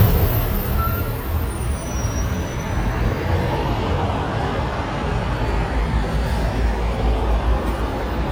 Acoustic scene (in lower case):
street